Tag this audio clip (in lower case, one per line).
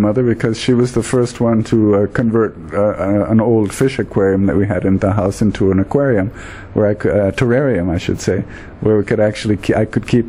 speech